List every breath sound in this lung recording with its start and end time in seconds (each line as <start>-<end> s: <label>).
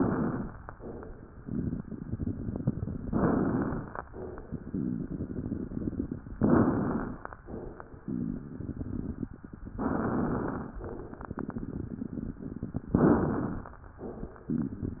0.00-0.59 s: inhalation
0.74-1.33 s: exhalation
1.37-3.00 s: crackles
3.06-4.00 s: inhalation
3.06-4.00 s: crackles
4.14-4.52 s: exhalation
4.52-6.28 s: crackles
6.43-7.38 s: inhalation
6.43-7.38 s: crackles
8.01-9.70 s: crackles
9.77-10.72 s: inhalation
9.77-10.72 s: crackles
10.81-12.92 s: crackles
10.83-11.37 s: exhalation
12.98-13.93 s: inhalation
12.98-13.93 s: crackles